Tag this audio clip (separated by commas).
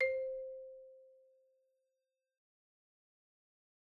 xylophone, Mallet percussion, Musical instrument, Percussion, Music